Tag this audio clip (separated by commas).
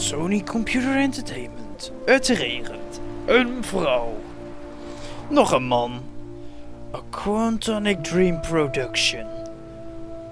Speech, Music